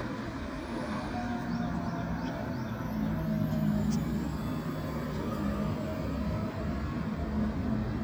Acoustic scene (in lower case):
residential area